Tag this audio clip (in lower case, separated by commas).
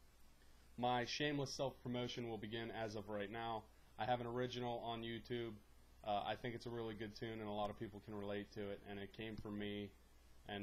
speech